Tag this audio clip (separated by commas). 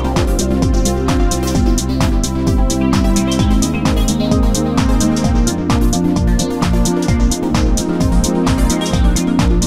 Music